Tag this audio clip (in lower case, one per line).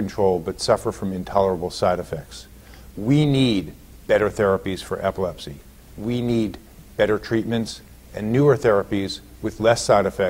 speech